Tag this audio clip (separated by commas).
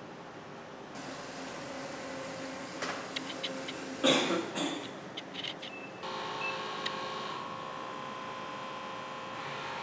printer printing